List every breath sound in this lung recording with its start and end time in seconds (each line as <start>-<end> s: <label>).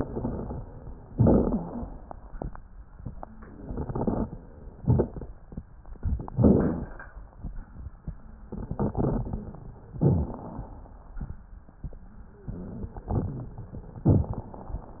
0.00-0.65 s: crackles
1.08-2.03 s: inhalation
1.08-2.03 s: crackles
3.49-4.44 s: exhalation
3.49-4.44 s: crackles
4.76-5.31 s: crackles
6.00-6.91 s: inhalation
6.00-6.91 s: crackles
8.57-9.60 s: exhalation
8.57-9.60 s: crackles
9.96-10.95 s: inhalation
9.96-10.95 s: crackles
12.50-13.59 s: exhalation
12.50-13.59 s: crackles
14.12-14.71 s: inhalation
14.12-14.71 s: crackles